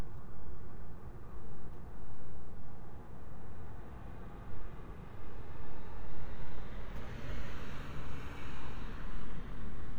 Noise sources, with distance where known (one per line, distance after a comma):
medium-sounding engine